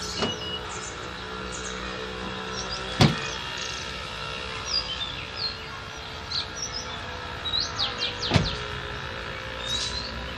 Rustling together with chirping and buzzing in the background